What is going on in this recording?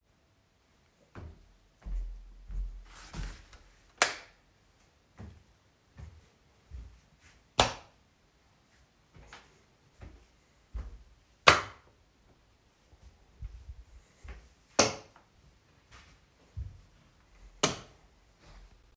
I turn on light switches around rooms while walking so you can hear the footsteps